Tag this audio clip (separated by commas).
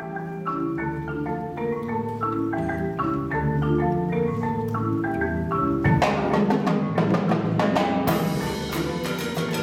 Cowbell